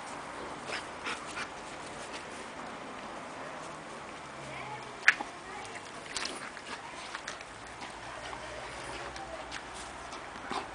Indistinguishable noises with children talking in the background